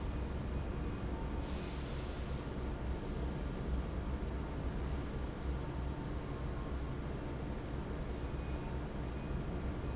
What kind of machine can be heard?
fan